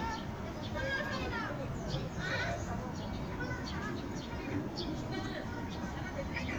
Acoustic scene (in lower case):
park